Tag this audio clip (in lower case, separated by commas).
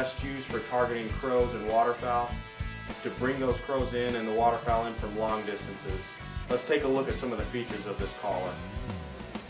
speech, music